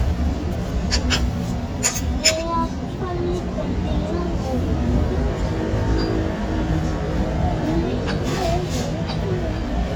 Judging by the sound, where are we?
in a restaurant